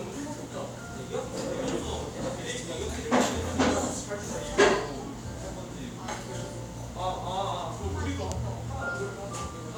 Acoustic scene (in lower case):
cafe